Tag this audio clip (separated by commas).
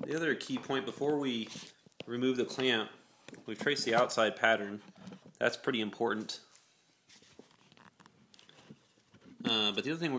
inside a small room, Speech